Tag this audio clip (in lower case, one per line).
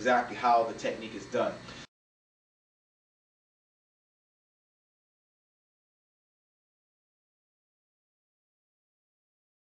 speech